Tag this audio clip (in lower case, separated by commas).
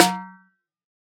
music, musical instrument, percussion, drum, snare drum